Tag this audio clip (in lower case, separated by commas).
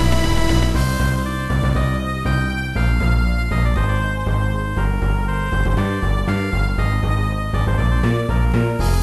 soundtrack music, music